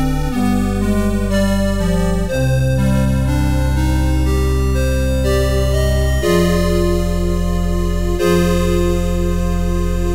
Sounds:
music

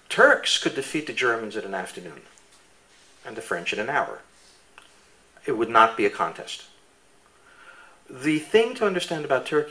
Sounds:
speech

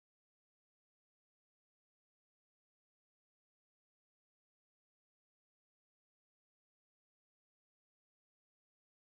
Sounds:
speech, music

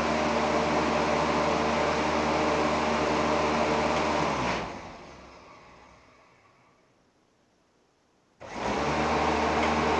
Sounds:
inside a small room, mechanical fan

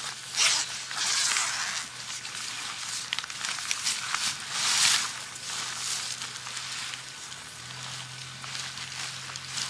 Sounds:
tearing

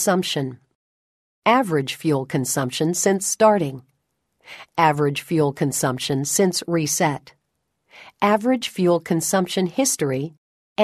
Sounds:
speech synthesizer

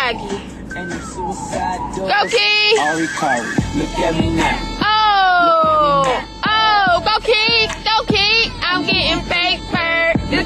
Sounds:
motor vehicle (road), vehicle, music, speech

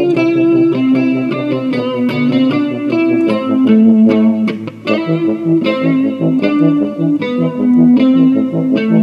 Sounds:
electric guitar, musical instrument, guitar, plucked string instrument, music

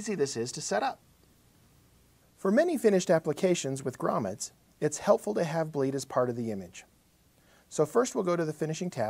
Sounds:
speech

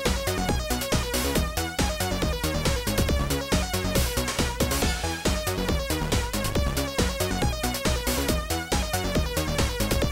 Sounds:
music

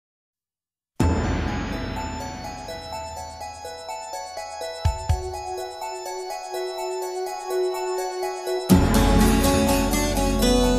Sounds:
music

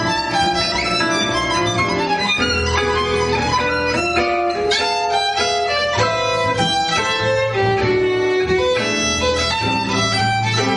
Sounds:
musical instrument, jazz, fiddle, music

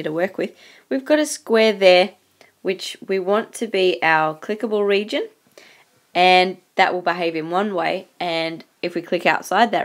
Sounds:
speech

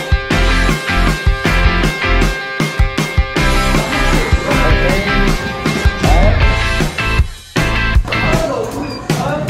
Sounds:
music, speech

